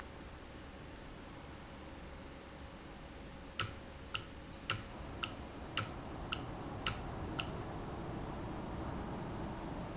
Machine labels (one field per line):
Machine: valve